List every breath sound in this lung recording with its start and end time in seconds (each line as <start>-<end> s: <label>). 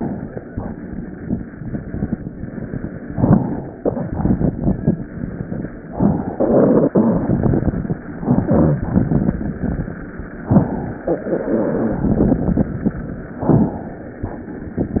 3.13-3.76 s: inhalation
3.83-4.88 s: exhalation
5.90-6.95 s: inhalation
6.95-7.99 s: exhalation
8.20-8.77 s: inhalation
8.88-9.93 s: exhalation
10.47-11.03 s: inhalation
11.10-12.73 s: exhalation
13.43-14.25 s: inhalation